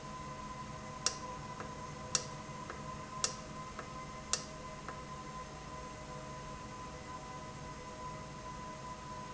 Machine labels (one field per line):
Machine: valve